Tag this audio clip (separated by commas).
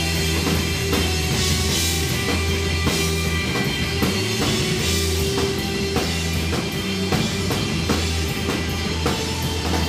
Music